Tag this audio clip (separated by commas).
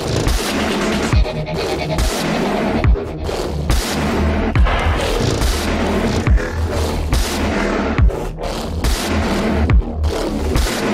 Music